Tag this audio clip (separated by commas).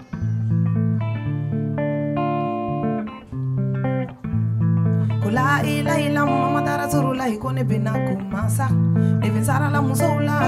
Music